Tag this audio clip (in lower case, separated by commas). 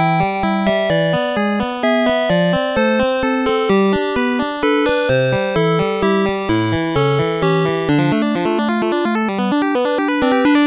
music